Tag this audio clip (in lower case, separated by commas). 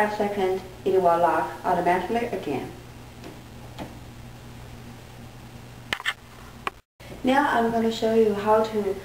speech